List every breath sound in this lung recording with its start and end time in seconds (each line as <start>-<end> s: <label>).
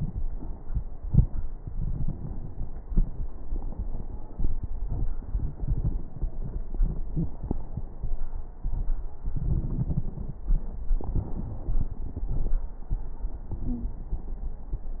13.65-14.01 s: wheeze